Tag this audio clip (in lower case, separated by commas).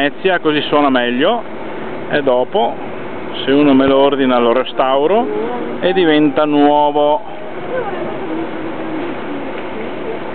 speech, vehicle, motorboat, water vehicle